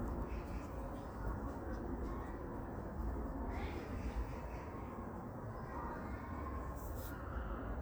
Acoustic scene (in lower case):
park